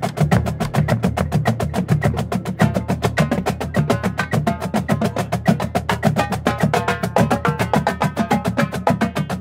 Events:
[0.00, 9.40] music

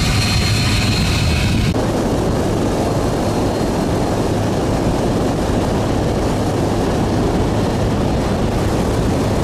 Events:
[0.00, 9.43] water vehicle

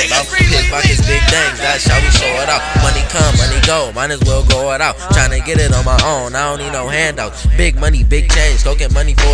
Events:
[0.01, 9.33] male singing
[0.01, 9.33] music

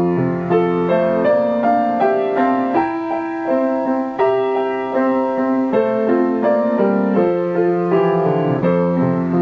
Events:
[0.00, 9.41] music

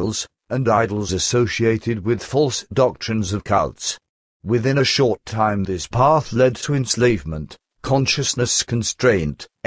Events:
[0.00, 0.28] man speaking
[0.00, 4.04] background noise
[0.46, 4.03] man speaking
[4.39, 7.55] man speaking
[4.40, 9.65] background noise
[7.83, 9.48] man speaking
[9.61, 9.65] man speaking

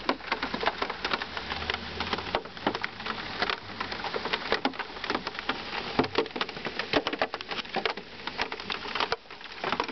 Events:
[0.00, 4.56] motor vehicle (road)
[0.00, 9.91] rain on surface
[1.27, 3.90] revving

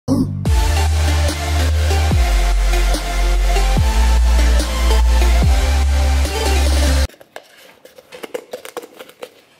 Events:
[0.06, 7.07] music
[7.06, 7.38] biting
[7.33, 7.83] breathing
[7.81, 9.21] biting

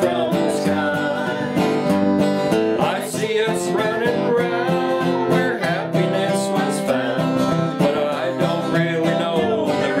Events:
[0.00, 1.66] male singing
[0.00, 10.00] music
[2.71, 7.25] male singing
[7.80, 10.00] male singing

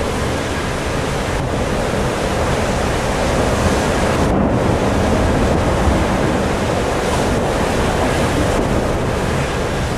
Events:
[0.00, 9.95] sailboat
[0.00, 9.95] surf
[0.00, 9.95] wind noise (microphone)

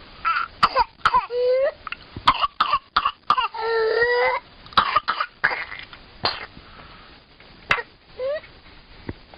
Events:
[0.00, 9.35] mechanisms
[0.19, 0.44] crying
[0.56, 0.80] cough
[1.02, 1.27] cough
[1.24, 1.69] crying
[1.82, 1.89] tick
[2.18, 2.42] cough
[2.23, 2.27] tick
[2.55, 2.79] cough
[2.89, 3.12] cough
[2.91, 2.96] tick
[3.21, 3.44] cough
[3.24, 3.31] tick
[3.45, 4.33] crying
[3.49, 4.34] breathing
[4.75, 5.28] cough
[5.39, 5.90] cough
[5.84, 5.91] tick
[6.16, 6.46] cough
[6.58, 7.20] breathing
[7.64, 7.86] cough
[7.65, 7.69] tick
[8.12, 8.43] crying
[9.06, 9.11] tick

